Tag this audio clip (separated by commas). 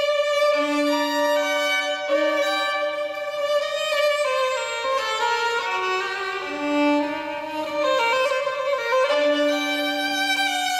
Musical instrument, Violin, Music